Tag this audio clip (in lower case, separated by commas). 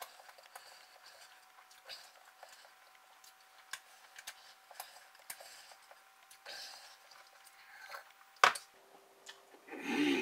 tick